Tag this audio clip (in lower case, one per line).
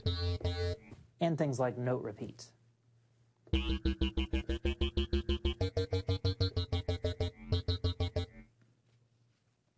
speech